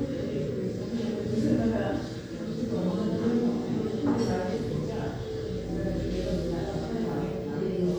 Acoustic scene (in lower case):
crowded indoor space